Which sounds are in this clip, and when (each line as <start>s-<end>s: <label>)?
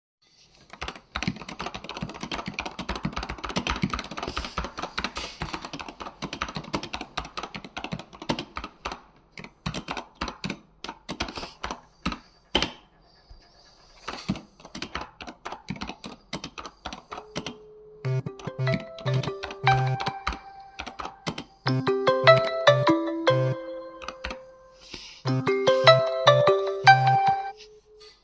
0.6s-12.9s: keyboard typing
14.0s-24.6s: keyboard typing
17.8s-27.7s: phone ringing